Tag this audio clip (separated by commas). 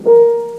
Keyboard (musical), Piano, Music, Musical instrument